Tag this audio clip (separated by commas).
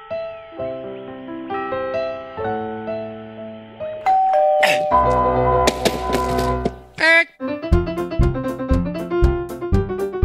inside a large room or hall, Music